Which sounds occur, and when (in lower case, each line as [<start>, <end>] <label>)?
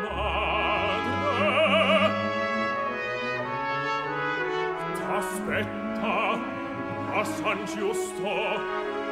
[0.00, 2.10] male singing
[0.00, 9.11] music
[4.87, 6.41] male singing
[7.08, 8.57] male singing